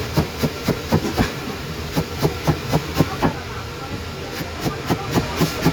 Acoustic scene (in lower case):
kitchen